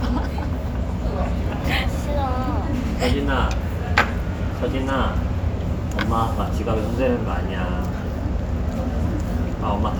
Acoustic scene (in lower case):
restaurant